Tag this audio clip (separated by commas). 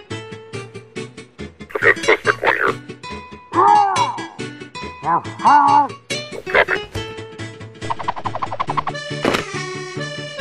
outside, urban or man-made, Speech, Music